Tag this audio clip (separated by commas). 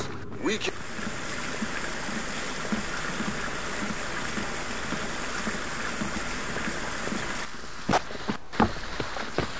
Speech, Rain